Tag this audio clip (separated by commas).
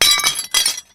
Glass, Shatter